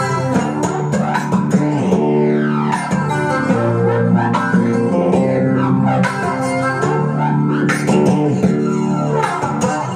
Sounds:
musical instrument, acoustic guitar, playing acoustic guitar, guitar, dubstep, music, plucked string instrument

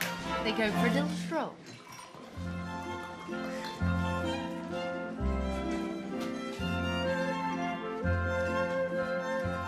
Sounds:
music, dance music, speech

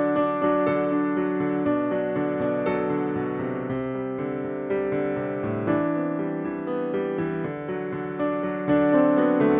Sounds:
music, musical instrument

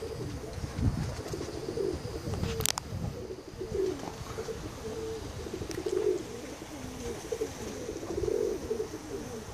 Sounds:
bird, pigeon

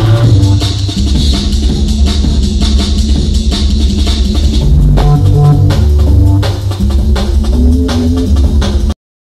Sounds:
dance music, music

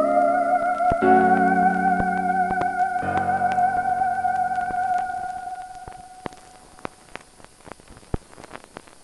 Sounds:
playing theremin

